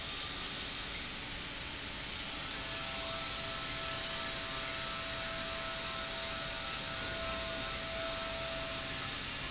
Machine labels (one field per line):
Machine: pump